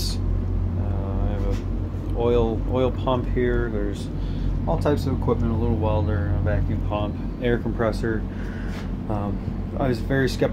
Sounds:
speech

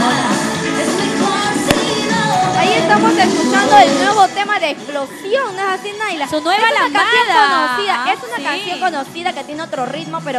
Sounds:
music
speech

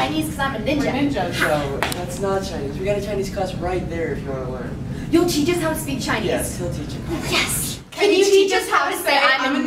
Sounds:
woman speaking
speech

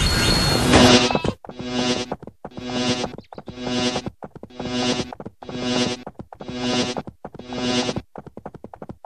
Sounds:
music

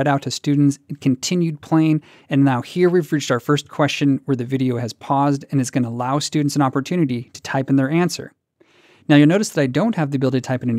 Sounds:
new-age music

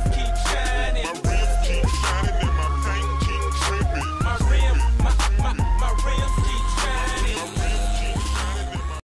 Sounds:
music

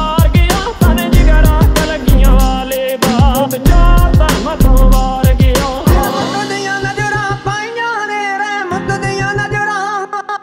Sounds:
rhythm and blues

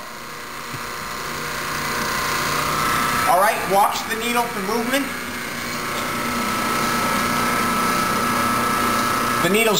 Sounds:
speech
inside a large room or hall

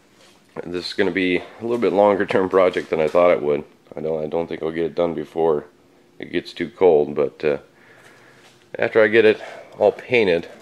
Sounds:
speech
inside a small room

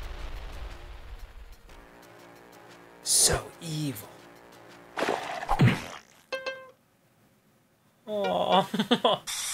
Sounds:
music
speech

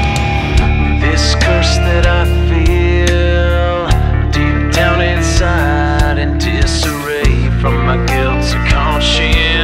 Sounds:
music

